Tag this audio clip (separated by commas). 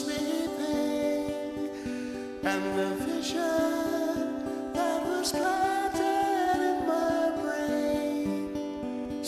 Music